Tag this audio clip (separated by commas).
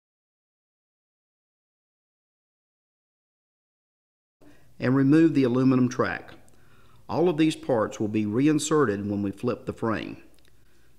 Speech